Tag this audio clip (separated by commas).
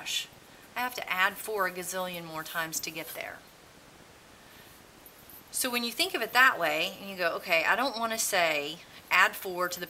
Speech